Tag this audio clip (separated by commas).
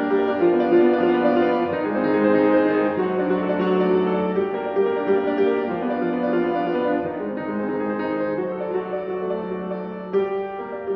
Music